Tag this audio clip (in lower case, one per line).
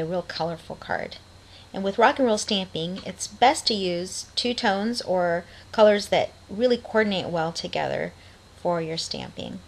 speech